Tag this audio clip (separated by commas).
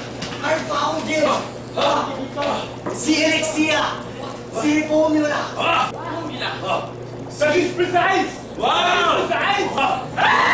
Speech